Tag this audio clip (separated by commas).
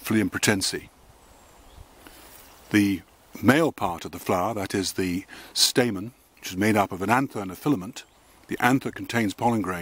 Speech